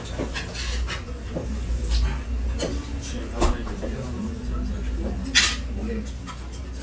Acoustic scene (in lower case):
restaurant